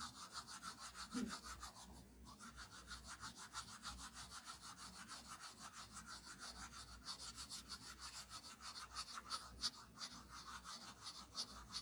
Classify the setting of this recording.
restroom